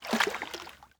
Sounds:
water, liquid, splash

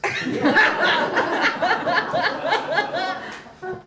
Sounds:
human voice, laughter, human group actions, crowd

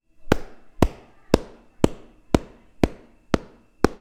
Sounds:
clapping, chatter, hands, human group actions

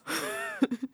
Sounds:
human voice, laughter

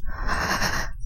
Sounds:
respiratory sounds, breathing

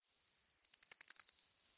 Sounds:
bird song, tweet, wild animals, bird, animal

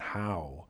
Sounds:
male speech, human voice, speech

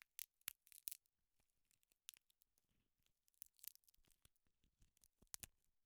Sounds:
crack

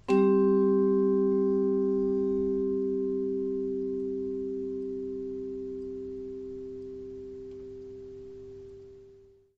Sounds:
mallet percussion, music, musical instrument, percussion

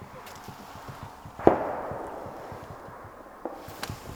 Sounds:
gunshot, explosion

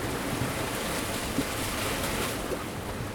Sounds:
water, ocean, waves

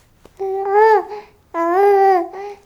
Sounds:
human voice, speech

